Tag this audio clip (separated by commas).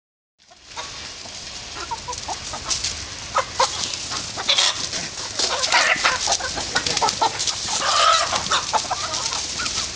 Cluck, Chicken, chicken clucking, Fowl